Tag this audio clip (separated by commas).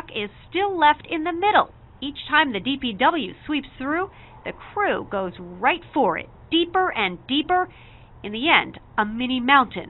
Speech